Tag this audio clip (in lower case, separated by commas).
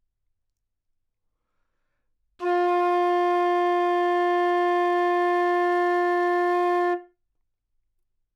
woodwind instrument, music, musical instrument